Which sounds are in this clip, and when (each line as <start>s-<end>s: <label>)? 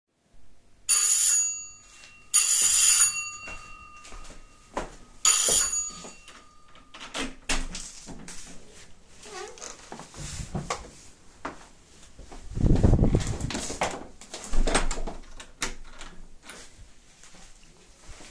0.8s-1.7s: bell ringing
2.3s-6.4s: footsteps
2.3s-3.7s: bell ringing
5.2s-6.0s: bell ringing
6.9s-9.8s: door
9.1s-12.5s: footsteps
12.4s-16.7s: door